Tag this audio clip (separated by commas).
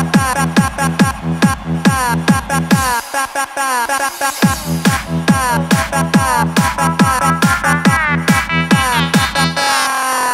Techno, Electronic music, Music